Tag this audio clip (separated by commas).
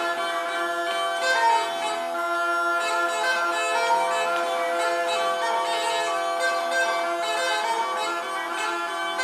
Bagpipes, Music